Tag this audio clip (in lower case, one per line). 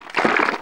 liquid